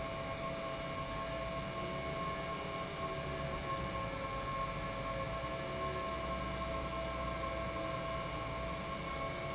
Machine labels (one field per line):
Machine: pump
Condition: normal